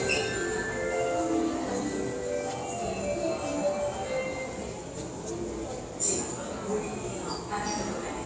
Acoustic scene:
subway station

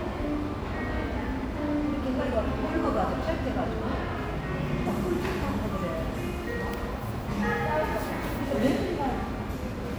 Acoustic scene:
cafe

